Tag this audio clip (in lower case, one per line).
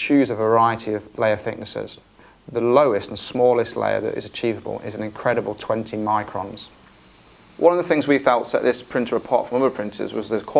speech